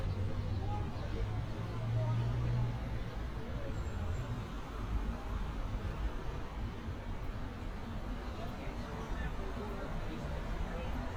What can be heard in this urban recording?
person or small group talking